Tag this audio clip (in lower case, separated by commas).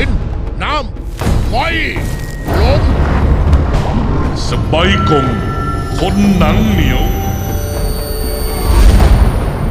speech, music